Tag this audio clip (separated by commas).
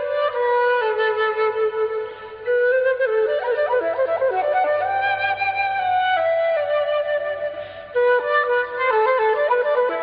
Music, Flute